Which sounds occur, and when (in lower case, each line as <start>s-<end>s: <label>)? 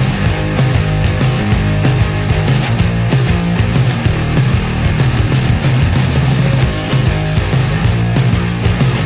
0.0s-9.0s: music